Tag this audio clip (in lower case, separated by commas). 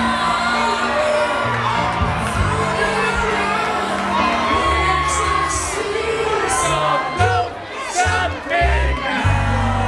musical instrument, guitar, plucked string instrument, electric guitar, music, strum